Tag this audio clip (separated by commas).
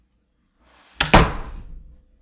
Domestic sounds, Slam, Wood, Door